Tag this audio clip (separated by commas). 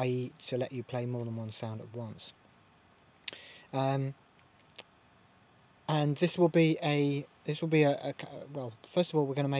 Speech